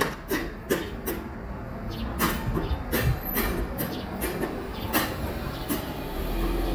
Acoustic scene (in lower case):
residential area